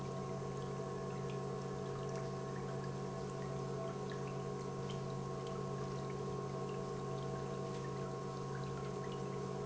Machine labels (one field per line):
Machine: pump